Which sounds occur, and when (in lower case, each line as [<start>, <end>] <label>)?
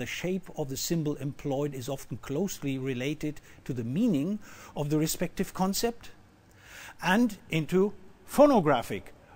[0.00, 2.13] male speech
[0.00, 9.35] mechanisms
[2.27, 3.38] male speech
[3.42, 3.61] breathing
[3.67, 4.39] male speech
[4.41, 4.75] breathing
[4.75, 5.26] male speech
[5.38, 6.14] male speech
[6.55, 6.99] breathing
[6.98, 7.38] male speech
[7.53, 7.95] male speech
[8.28, 9.14] male speech
[9.20, 9.35] breathing